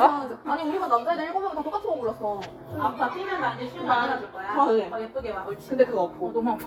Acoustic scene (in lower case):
crowded indoor space